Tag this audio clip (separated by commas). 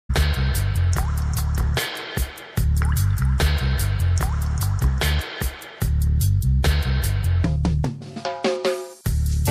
Music